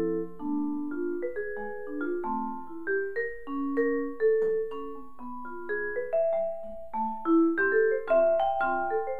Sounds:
playing vibraphone

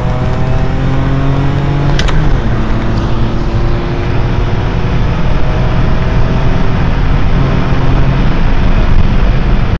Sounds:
Vehicle, Engine, Accelerating, Car, Medium engine (mid frequency)

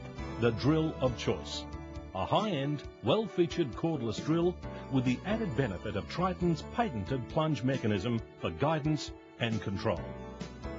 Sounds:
Music, Speech

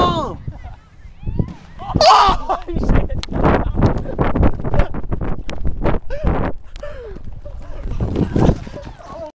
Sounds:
Speech

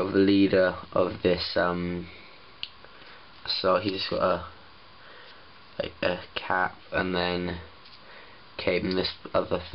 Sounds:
Speech

